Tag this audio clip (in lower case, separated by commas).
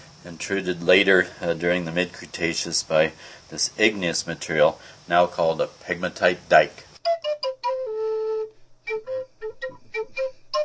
music, speech, inside a small room